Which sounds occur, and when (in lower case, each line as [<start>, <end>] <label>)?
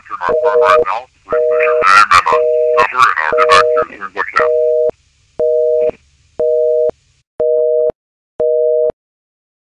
[0.00, 7.20] noise
[2.74, 4.46] man speaking
[8.38, 8.88] busy signal